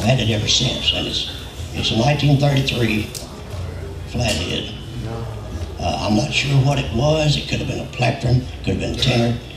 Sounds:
male speech, speech

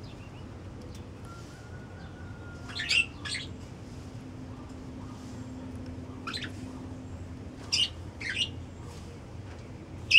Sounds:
coo, bird

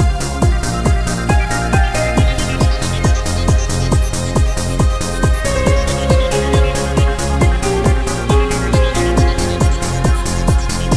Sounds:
trance music, music

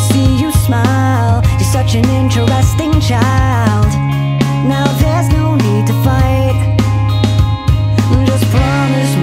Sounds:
music

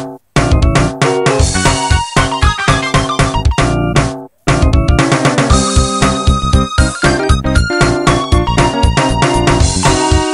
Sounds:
video game music, music

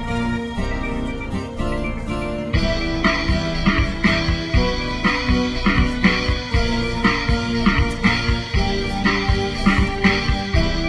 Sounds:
music

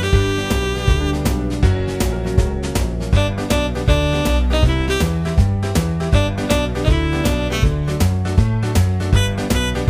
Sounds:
music, musical instrument

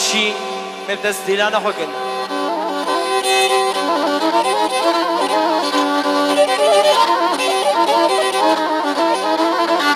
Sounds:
music, speech

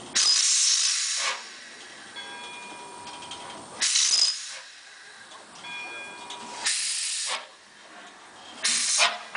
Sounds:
train, vehicle

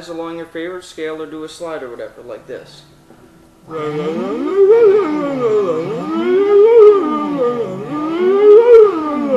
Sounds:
music, speech

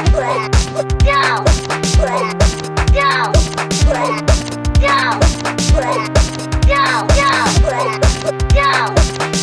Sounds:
speech, music, electronic music, techno

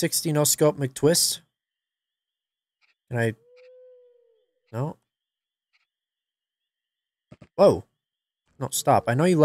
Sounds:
speech, inside a small room

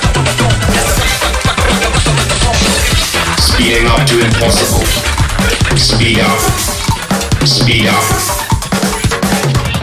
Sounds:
music, drum kit, musical instrument, drum

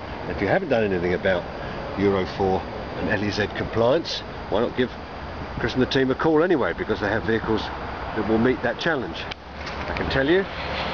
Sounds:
speech

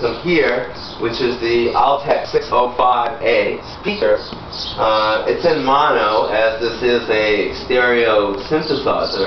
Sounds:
speech

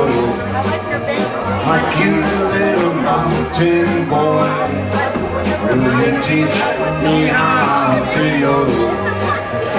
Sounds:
speech, music

